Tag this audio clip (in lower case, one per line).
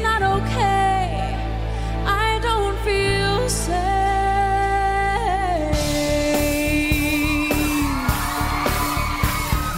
music